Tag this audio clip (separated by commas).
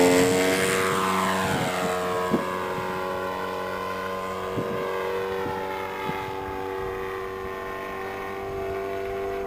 Fixed-wing aircraft, Flap, Aircraft